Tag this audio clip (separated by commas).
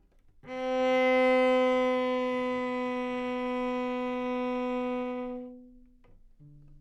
Bowed string instrument, Musical instrument, Music